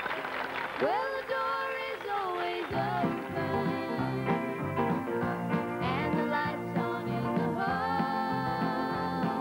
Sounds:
music

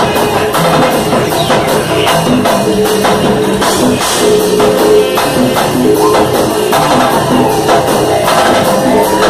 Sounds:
music
pop music

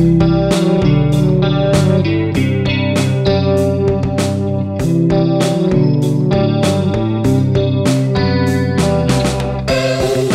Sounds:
tapping (guitar technique)
music

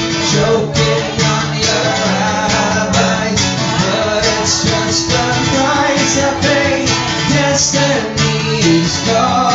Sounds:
music
male singing

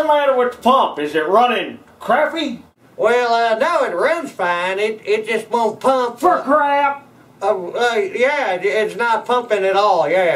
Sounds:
speech

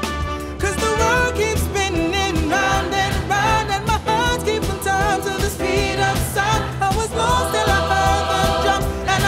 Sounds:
music

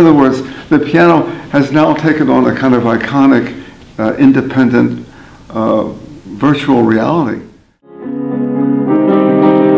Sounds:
music
speech

